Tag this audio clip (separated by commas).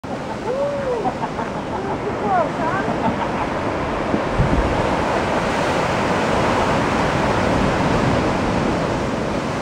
Speech, Ocean, surf